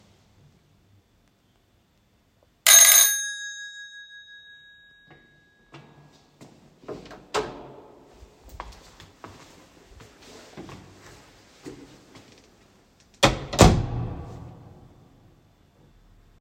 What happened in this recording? The doorbell rang. I walked to the door, opened it, and then closed it again.